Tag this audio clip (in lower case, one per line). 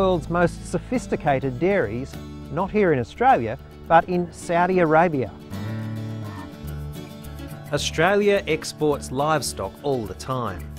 speech
music